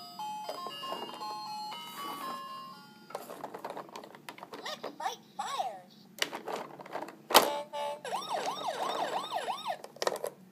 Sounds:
Music, Speech

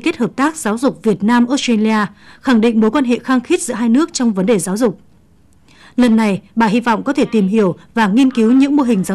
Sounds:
Speech

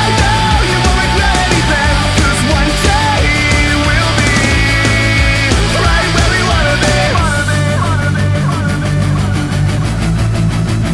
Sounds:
Music, Angry music

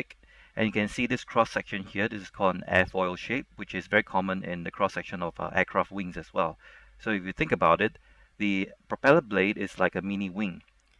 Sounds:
Speech synthesizer, Narration, Speech

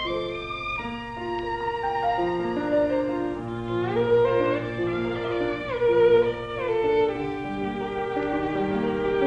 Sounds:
fiddle, Music, Musical instrument

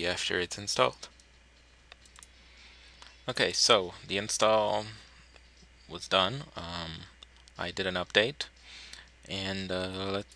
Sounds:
Speech

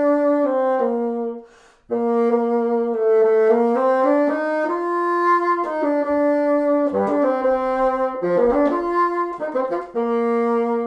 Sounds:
playing bassoon

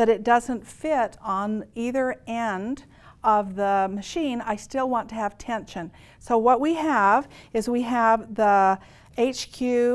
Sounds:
Speech

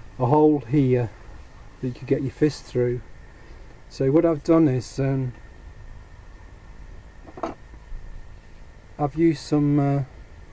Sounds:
Speech

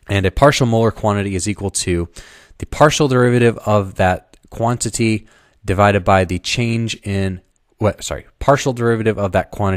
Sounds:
Speech

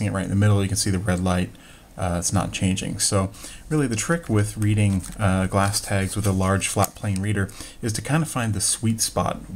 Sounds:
Speech

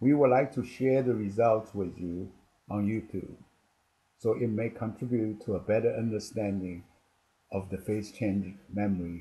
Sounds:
Speech

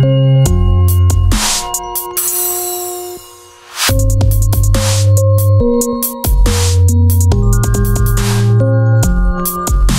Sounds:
Electronic music, Music, Electronica, Dubstep

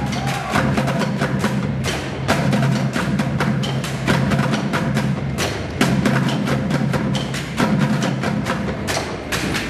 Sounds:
Drum, Percussion

